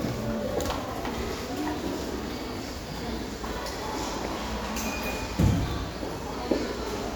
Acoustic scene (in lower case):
elevator